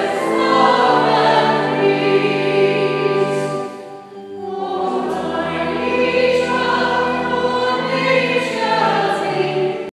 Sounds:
Music, Christmas music

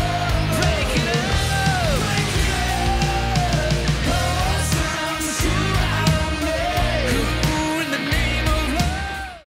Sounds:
Music

